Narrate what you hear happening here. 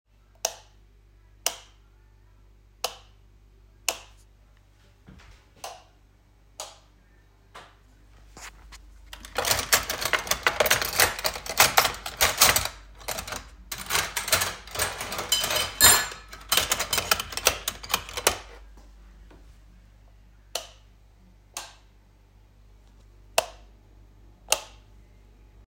I turn the light switch on and of a couple times while searching through the cutlery, trying to find a knife.